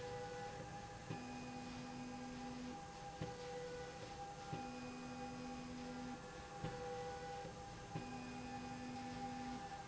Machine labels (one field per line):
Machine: slide rail